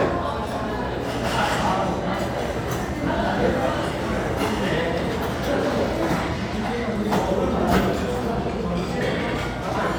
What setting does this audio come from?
restaurant